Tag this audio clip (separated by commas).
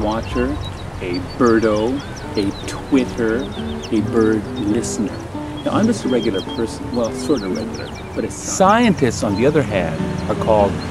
Speech, Music